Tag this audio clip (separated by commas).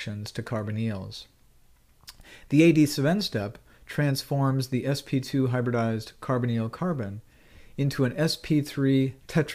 Speech